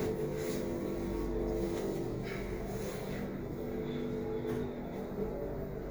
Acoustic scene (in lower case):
elevator